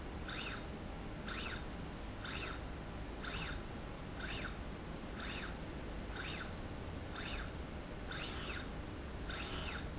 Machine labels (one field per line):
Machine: slide rail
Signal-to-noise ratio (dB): 0 dB